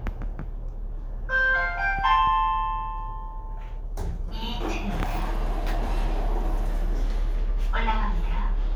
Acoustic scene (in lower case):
elevator